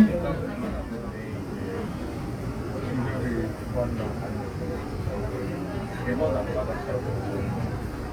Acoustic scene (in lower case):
subway train